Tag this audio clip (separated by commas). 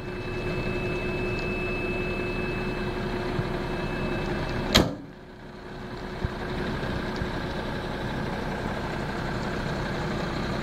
Truck, Vehicle